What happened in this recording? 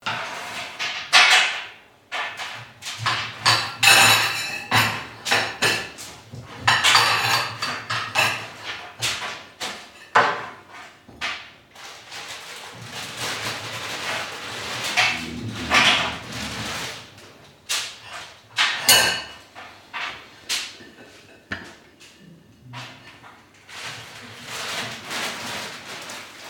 Chicken nuggets are being placed on an oven tray from a freezer bag. Meanwhile bread is being cut on a dinner plate.